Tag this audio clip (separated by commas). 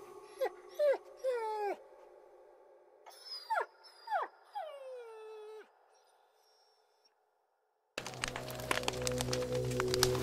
dog whimpering